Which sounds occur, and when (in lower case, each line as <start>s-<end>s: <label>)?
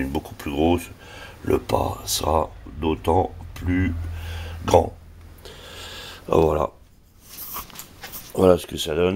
0.0s-0.9s: male speech
0.0s-9.1s: mechanisms
1.0s-1.4s: breathing
1.4s-2.4s: male speech
2.6s-3.3s: male speech
3.5s-3.9s: male speech
4.1s-4.6s: breathing
4.6s-4.9s: male speech
5.2s-5.3s: tick
5.4s-6.3s: breathing
6.2s-6.7s: male speech
6.3s-6.5s: tick
6.8s-7.0s: generic impact sounds
7.2s-7.8s: surface contact
7.5s-7.8s: generic impact sounds
8.0s-8.4s: surface contact
8.2s-9.1s: male speech